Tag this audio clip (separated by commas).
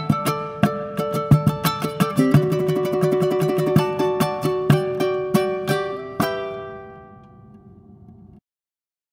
playing ukulele